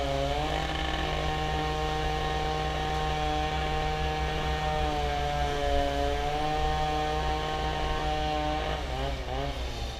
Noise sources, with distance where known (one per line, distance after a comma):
unidentified powered saw, near